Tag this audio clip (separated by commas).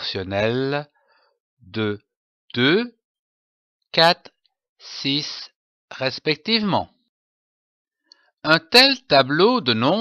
Speech